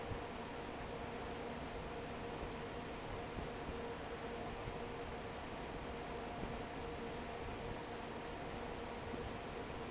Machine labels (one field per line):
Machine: fan